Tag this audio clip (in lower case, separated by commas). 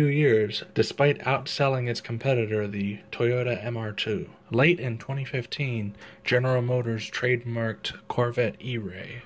speech